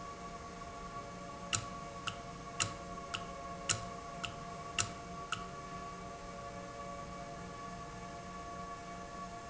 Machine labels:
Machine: valve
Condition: normal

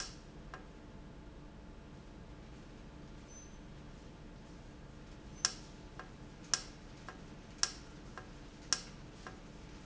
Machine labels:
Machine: valve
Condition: normal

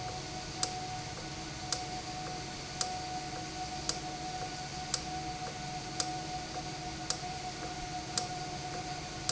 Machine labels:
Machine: valve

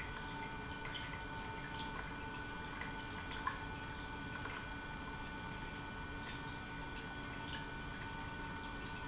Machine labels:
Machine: pump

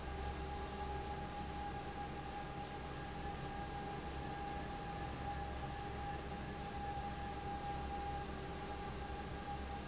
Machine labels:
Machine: fan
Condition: abnormal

